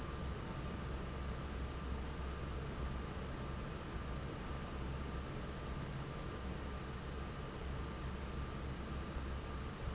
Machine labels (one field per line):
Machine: fan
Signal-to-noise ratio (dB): 0 dB